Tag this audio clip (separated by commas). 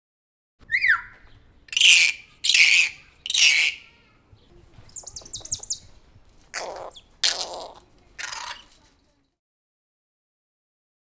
Bird, Wild animals, Animal, Bird vocalization